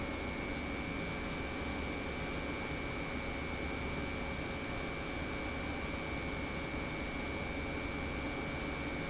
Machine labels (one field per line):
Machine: pump